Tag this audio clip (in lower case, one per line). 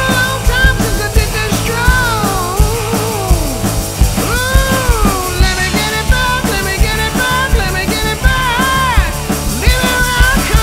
music
rock and roll